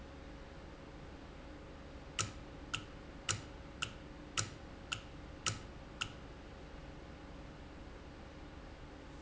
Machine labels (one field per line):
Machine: valve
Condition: normal